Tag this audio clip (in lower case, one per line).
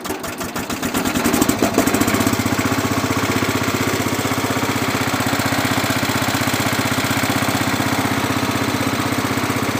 vehicle